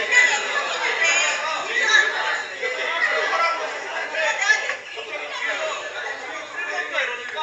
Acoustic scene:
crowded indoor space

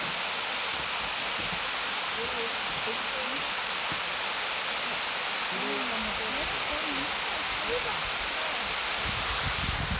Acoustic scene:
park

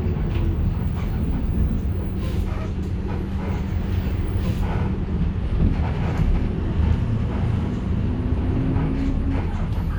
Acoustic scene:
bus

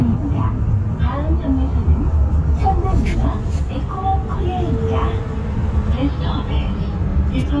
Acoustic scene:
bus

